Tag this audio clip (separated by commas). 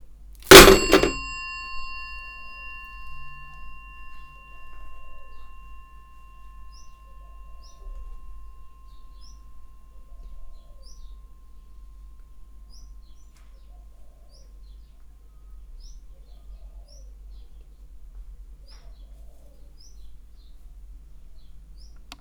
bird call, Alarm, Bird, Telephone, Wild animals, Animal